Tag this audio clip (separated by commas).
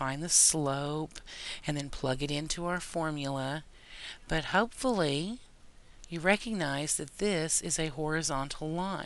Speech